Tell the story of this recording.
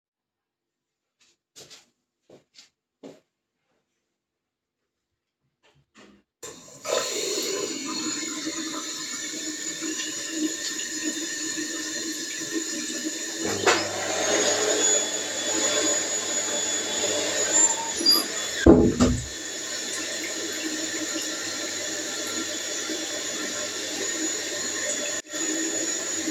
I had just walked in to the bathroom, turned the tap on, and I was about to start brushing my teeth, when the vacuum went off in the other room, so I walked over to the door and closed it shut.